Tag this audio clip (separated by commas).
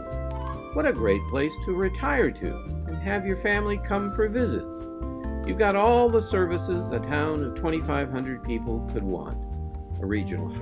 Speech, Music